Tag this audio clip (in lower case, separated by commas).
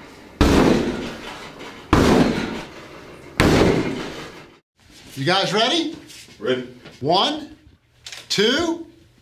speech